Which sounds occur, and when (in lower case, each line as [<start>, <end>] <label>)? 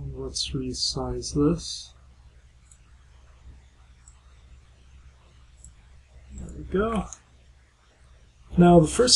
[0.00, 1.95] man speaking
[0.00, 9.15] background noise
[2.71, 2.78] tick
[4.06, 4.11] tick
[5.65, 5.70] tick
[6.29, 7.22] man speaking
[6.96, 7.00] tick
[7.14, 7.19] tick
[8.51, 9.15] man speaking